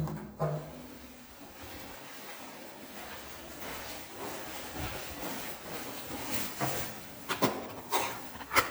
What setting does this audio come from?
elevator